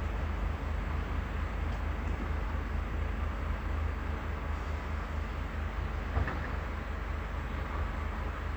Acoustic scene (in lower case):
residential area